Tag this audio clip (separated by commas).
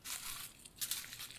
Walk